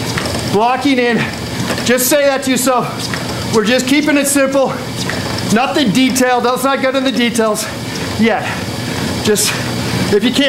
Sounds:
Television

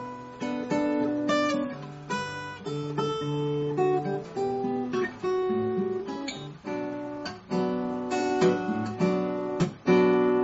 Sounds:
Musical instrument, Plucked string instrument, Music, Acoustic guitar, Guitar

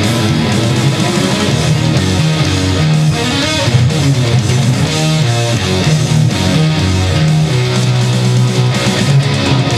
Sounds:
Plucked string instrument, Music, Guitar, Musical instrument, Electric guitar

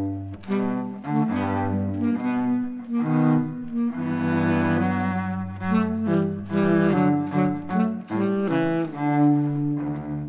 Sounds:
Music, Musical instrument, Cello

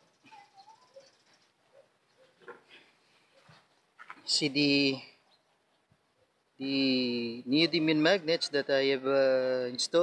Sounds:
Speech

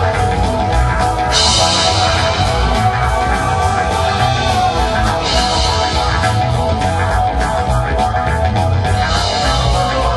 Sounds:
Music, Progressive rock, Rock music

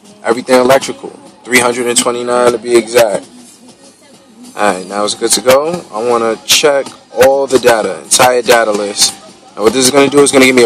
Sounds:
Speech, Music

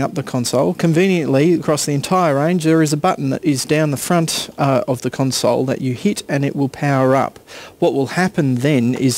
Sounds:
monologue, Speech

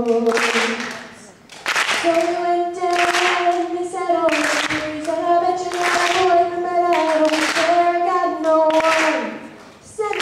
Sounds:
Female singing

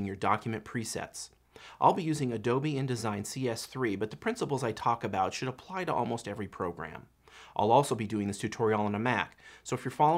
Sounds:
Speech

